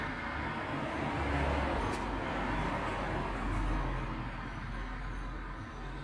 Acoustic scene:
street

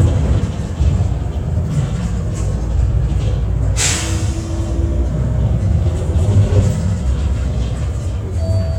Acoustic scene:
bus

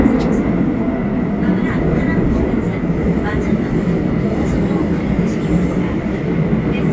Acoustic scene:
subway train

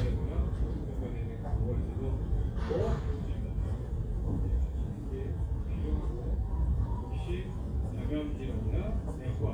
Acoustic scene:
crowded indoor space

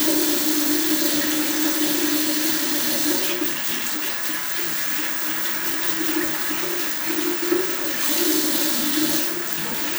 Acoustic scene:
restroom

